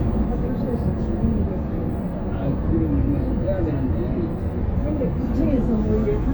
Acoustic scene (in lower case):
bus